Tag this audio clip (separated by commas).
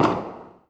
Explosion